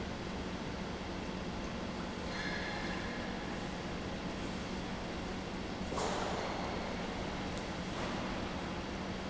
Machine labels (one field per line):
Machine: pump